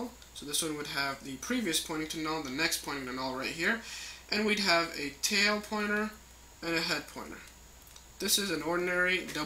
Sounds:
speech

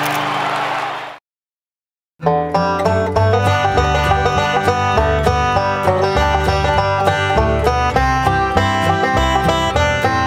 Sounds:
playing banjo

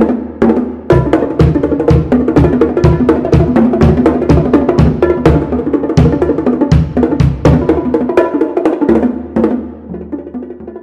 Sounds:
drum
percussion
bass drum

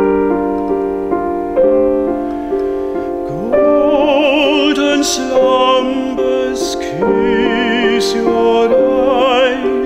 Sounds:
music
lullaby

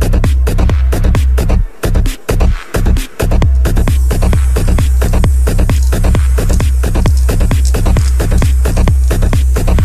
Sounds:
spray
music

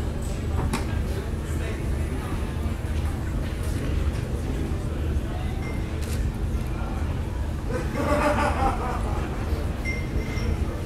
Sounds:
speech

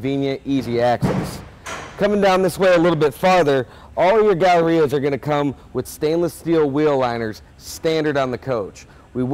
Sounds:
speech

